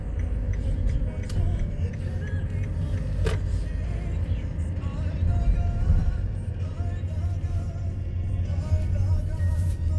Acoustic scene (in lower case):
car